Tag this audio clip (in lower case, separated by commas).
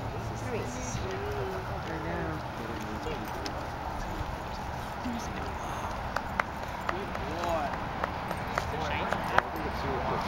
speech